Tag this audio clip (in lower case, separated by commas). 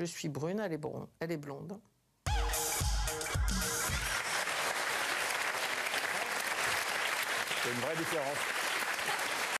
speech, music